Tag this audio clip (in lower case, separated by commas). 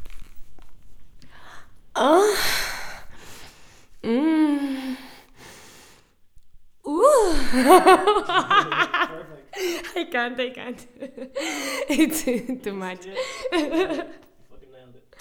human voice, laughter